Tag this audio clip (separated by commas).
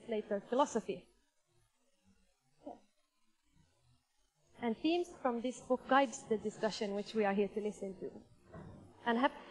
Speech, woman speaking